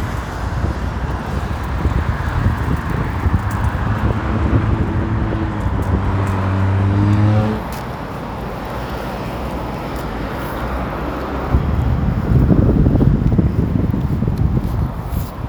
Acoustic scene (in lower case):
street